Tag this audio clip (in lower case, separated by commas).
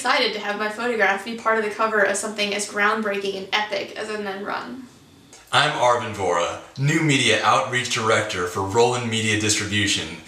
speech